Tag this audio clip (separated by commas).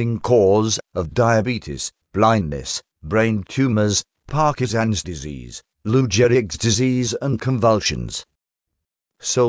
Speech